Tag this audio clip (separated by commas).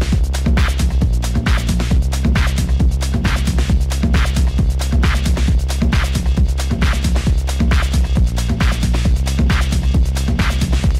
Techno, Music